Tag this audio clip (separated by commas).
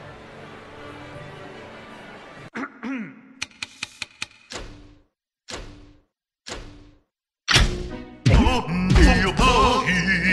Music